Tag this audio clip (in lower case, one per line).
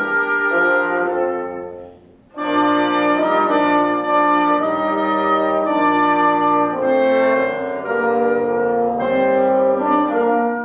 playing french horn
wind instrument
music
french horn
classical music